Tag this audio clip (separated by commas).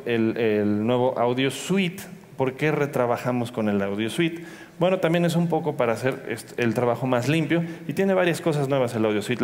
Speech